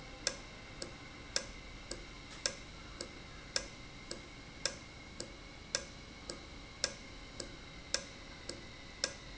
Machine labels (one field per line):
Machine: valve